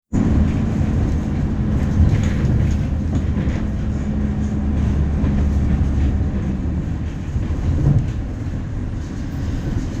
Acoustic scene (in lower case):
bus